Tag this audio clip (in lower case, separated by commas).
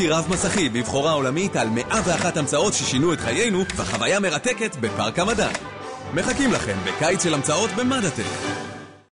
speech, music